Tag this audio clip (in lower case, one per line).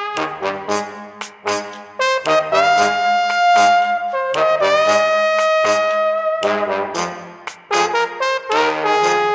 brass instrument
trombone
music